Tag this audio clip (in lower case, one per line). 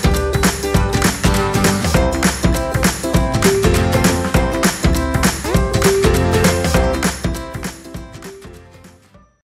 music